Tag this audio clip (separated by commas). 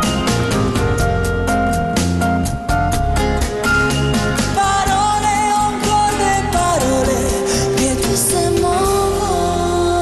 Music